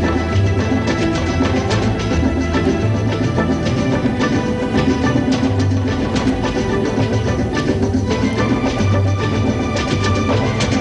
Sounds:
Music, Dance music

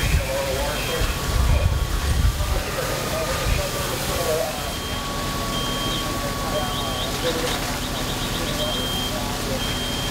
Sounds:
Speech

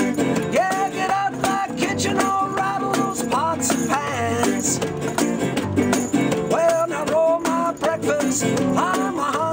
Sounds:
Music

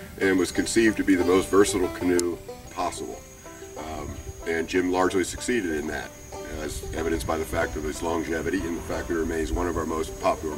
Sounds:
Music, Speech

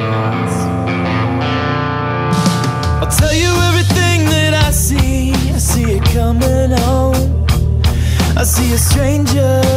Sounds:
Music

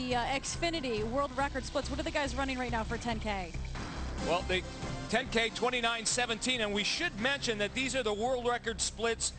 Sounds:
Music, Speech

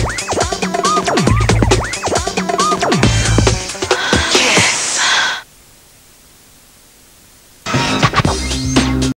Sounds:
Music

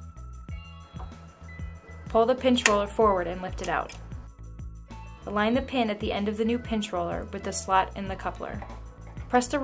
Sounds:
Music, Speech

